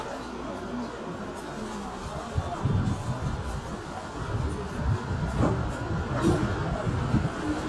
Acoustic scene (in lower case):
subway train